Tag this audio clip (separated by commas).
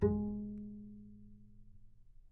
Music, Musical instrument, Bowed string instrument